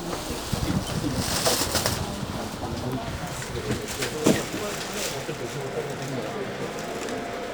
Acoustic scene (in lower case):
subway train